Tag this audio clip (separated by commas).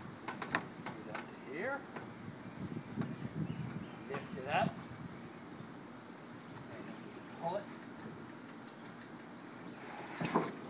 Speech